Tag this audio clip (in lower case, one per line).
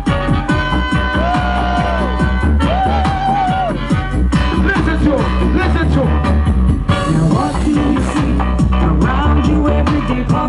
speech
music